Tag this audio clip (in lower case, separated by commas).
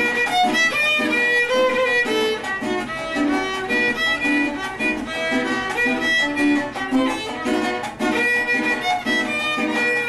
music, fiddle, musical instrument